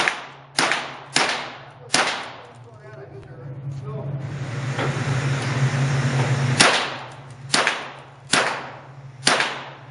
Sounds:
inside a large room or hall, speech

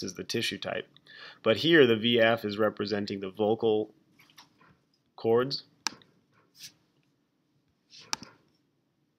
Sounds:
clicking, speech

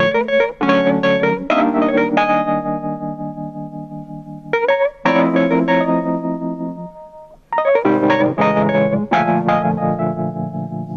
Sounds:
music

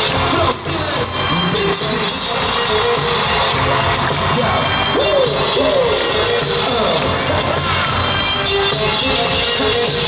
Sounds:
music

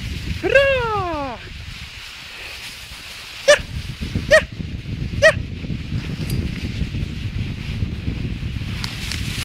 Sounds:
speech

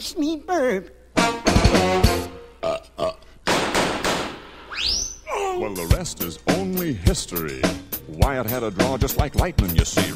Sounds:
music, speech

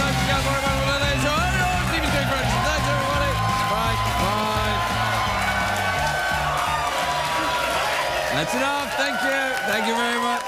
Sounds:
monologue, music, speech

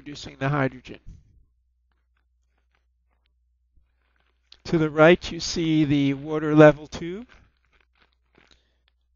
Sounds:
speech

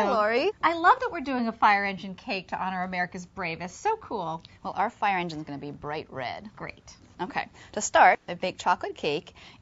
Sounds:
speech

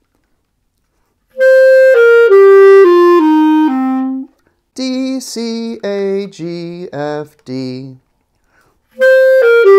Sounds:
playing clarinet

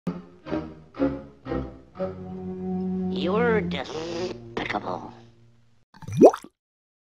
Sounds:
speech, music

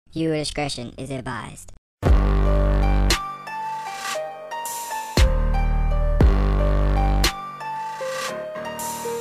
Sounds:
speech, music

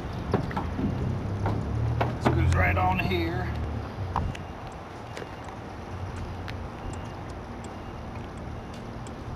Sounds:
speech, truck, vehicle

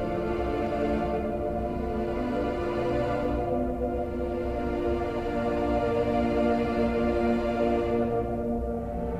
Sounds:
music

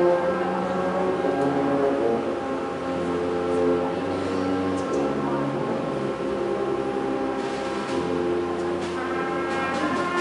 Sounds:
speech, music

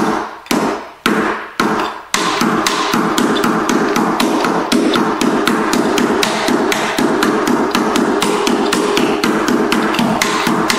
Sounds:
tap dancing

